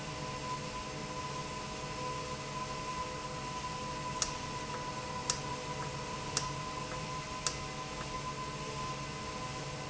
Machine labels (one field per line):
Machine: valve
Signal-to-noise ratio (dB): -6 dB